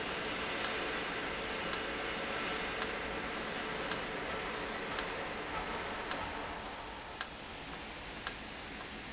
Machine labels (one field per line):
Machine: valve